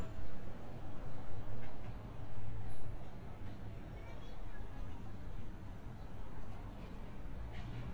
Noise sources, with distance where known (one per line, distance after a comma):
unidentified human voice, far